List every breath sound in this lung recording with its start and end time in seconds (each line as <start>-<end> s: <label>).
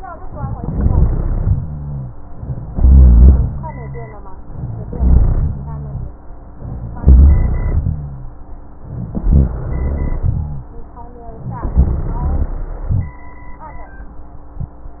0.55-1.54 s: inhalation
0.55-1.54 s: crackles
1.57-2.28 s: exhalation
1.57-2.28 s: rhonchi
2.69-3.51 s: inhalation
2.69-3.51 s: crackles
3.55-4.29 s: exhalation
3.55-4.29 s: rhonchi
4.90-5.49 s: inhalation
4.90-5.49 s: crackles
5.54-6.13 s: exhalation
5.54-6.13 s: rhonchi
6.98-7.97 s: inhalation
6.98-7.97 s: crackles
9.35-10.34 s: inhalation
9.35-10.34 s: crackles